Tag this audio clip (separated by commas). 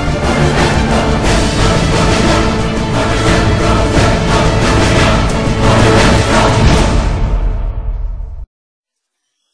Silence, Music